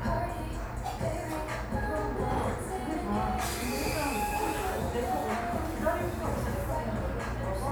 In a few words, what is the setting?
cafe